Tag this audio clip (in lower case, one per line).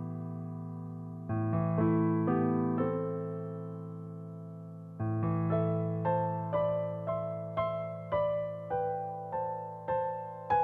electric piano